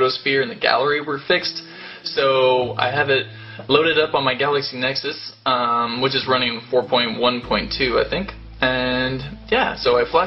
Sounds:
speech

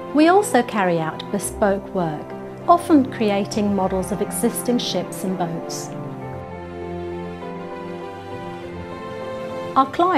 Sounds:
music, speech

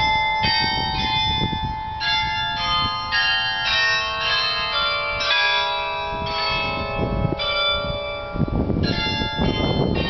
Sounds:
change ringing (campanology)

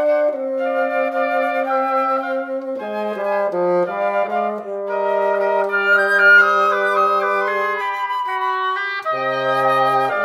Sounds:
playing bassoon

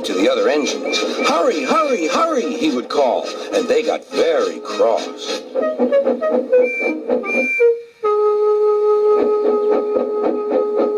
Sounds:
speech, music, inside a small room

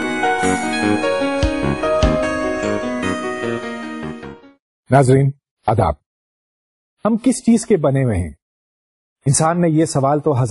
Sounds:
speech, music, inside a small room

